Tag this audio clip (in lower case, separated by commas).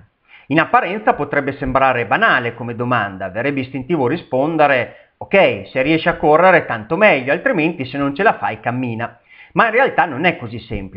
speech, inside a small room, man speaking